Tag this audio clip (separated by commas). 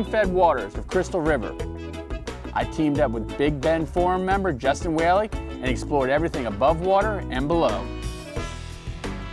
Speech, Music